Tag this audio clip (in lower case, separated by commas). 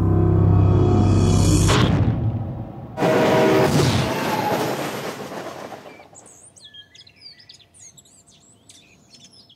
animal, music